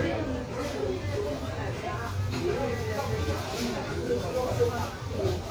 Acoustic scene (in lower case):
crowded indoor space